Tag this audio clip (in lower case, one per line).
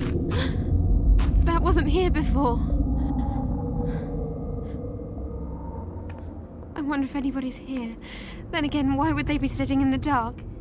speech